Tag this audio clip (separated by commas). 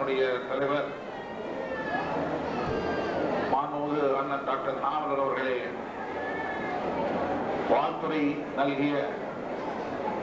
Speech, monologue, man speaking